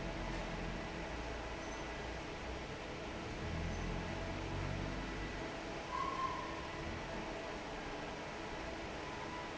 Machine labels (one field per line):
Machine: fan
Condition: normal